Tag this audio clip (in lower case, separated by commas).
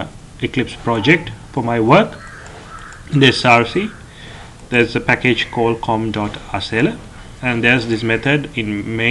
speech